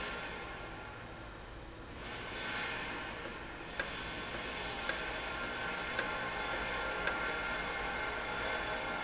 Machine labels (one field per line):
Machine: valve